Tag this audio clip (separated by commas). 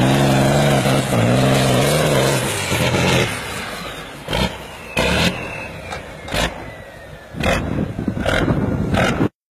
Vehicle, Air brake, Truck